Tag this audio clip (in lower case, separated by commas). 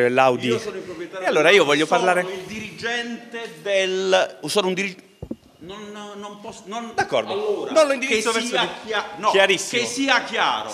speech